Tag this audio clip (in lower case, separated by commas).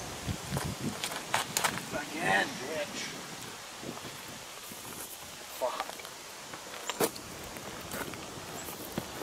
speech, outside, rural or natural